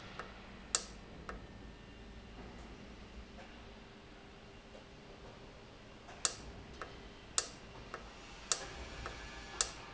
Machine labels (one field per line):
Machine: valve